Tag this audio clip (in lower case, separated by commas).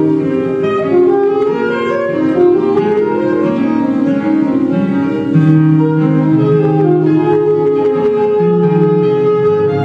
saxophone, musical instrument, music